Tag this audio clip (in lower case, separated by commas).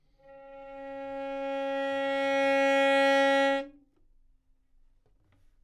musical instrument, bowed string instrument, music